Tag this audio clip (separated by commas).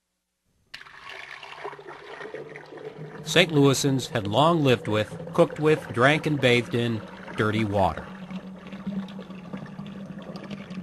Speech